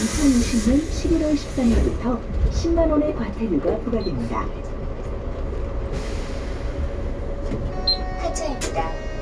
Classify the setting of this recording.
bus